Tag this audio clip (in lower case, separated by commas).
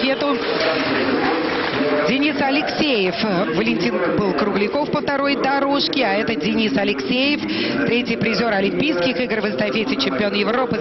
inside a public space, speech